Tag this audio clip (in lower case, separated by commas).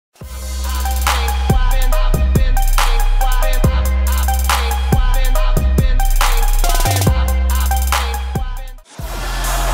music, rapping, hip hop music